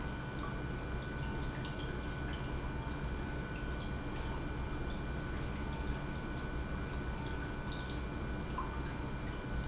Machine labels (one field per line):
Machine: pump